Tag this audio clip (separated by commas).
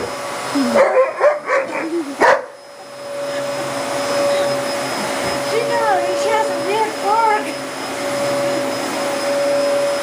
Speech, Bark, pets, Dog, Vacuum cleaner, Animal